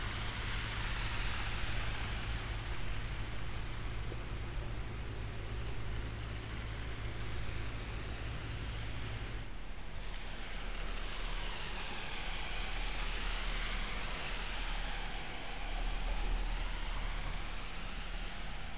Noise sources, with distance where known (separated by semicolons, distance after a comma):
engine of unclear size